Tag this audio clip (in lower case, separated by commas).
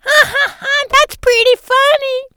laughter, human voice